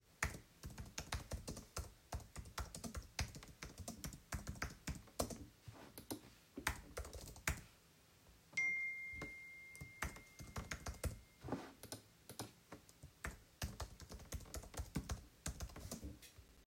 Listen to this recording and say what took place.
I was typing on my keyboard. Then my phone started to make a sound because I got a notification.